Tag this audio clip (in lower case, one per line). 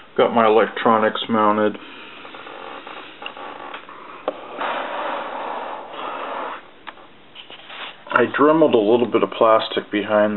speech